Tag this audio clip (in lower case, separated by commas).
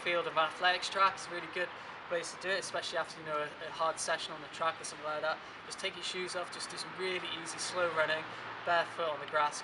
speech, outside, urban or man-made